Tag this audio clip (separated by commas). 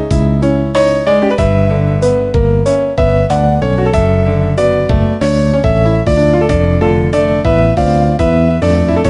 Video game music, Music